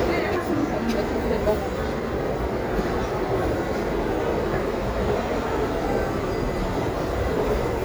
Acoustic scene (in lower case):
crowded indoor space